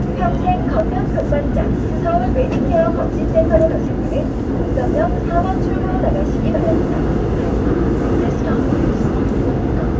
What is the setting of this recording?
subway train